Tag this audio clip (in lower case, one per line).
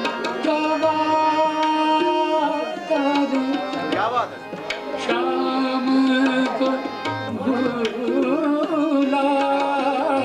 drum
tabla
percussion